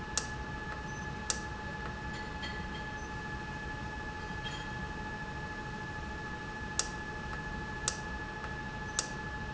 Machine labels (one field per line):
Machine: valve